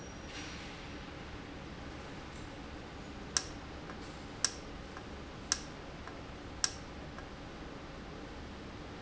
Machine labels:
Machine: valve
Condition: normal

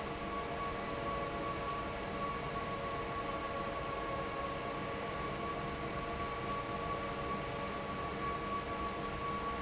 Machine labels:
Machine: fan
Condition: normal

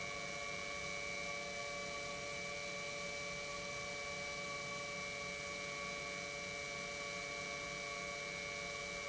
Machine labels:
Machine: pump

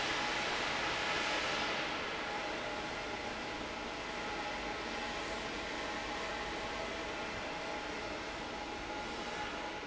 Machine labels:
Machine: fan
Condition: normal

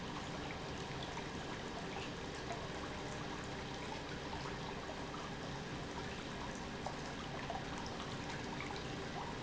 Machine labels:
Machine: pump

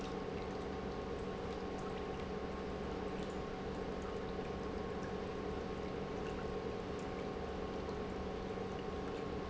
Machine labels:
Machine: pump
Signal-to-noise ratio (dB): 0 dB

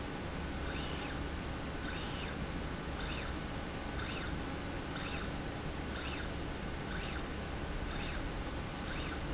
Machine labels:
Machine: slide rail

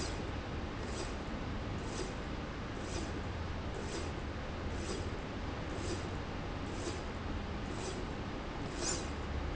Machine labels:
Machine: slide rail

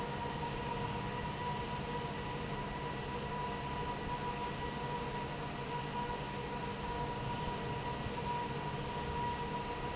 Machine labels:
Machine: fan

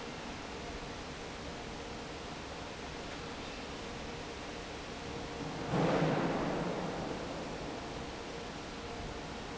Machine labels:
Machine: fan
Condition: normal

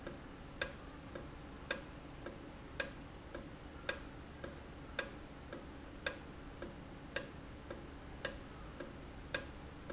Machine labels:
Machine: valve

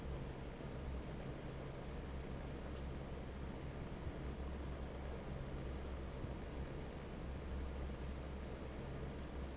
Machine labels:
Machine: fan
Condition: normal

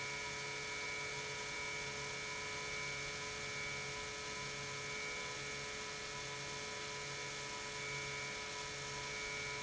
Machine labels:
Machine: pump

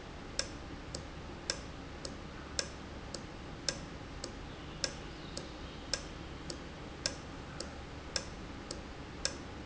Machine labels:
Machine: valve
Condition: normal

